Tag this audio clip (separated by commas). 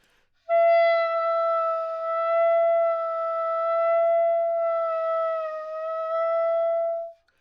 Musical instrument, Music, woodwind instrument